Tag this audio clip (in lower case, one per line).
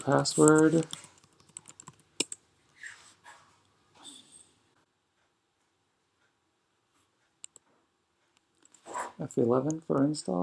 speech